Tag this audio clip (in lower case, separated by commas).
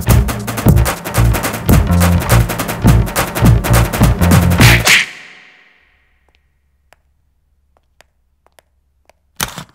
inside a large room or hall, music